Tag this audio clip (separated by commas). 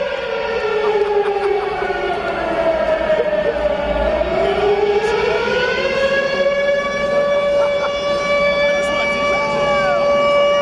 Speech, Siren, Civil defense siren